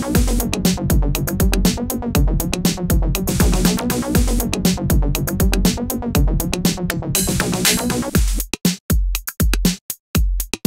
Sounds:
music
sampler

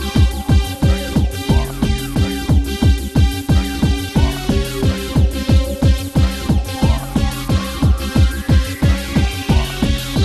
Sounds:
music
electronic music
techno

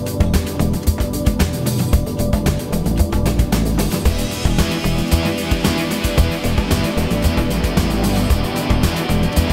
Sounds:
music

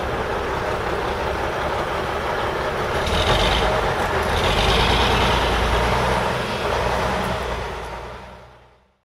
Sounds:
vehicle

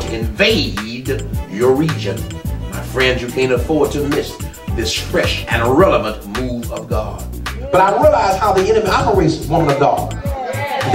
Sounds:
music
speech

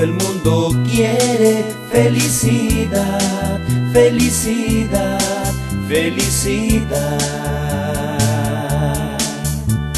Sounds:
music

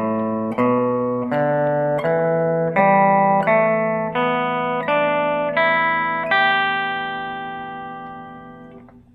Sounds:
musical instrument
guitar
music
plucked string instrument

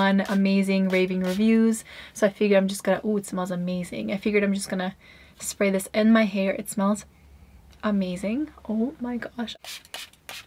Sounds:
hair dryer drying

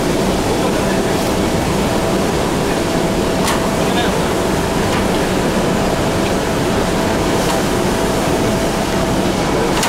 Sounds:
speech

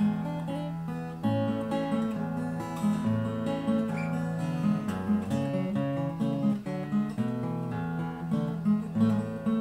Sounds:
music
musical instrument
acoustic guitar
plucked string instrument
guitar

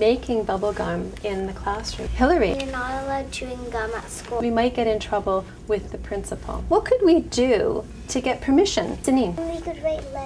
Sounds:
speech

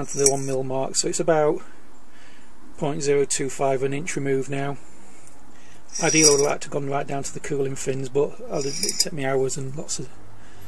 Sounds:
speech
vehicle

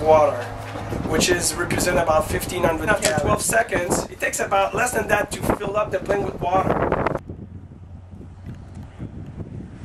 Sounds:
speech

